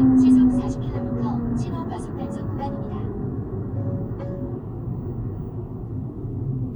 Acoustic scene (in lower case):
car